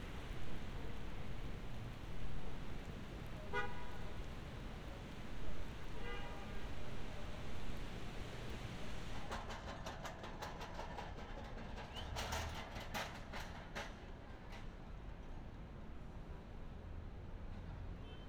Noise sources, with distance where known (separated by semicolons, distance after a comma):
car horn